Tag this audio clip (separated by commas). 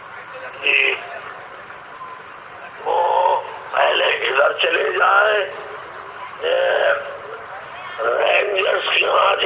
Speech, Male speech, monologue